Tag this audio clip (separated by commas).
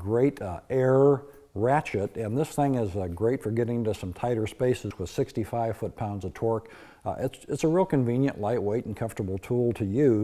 Speech